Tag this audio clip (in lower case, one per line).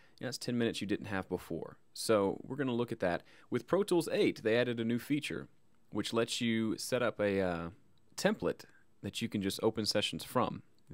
speech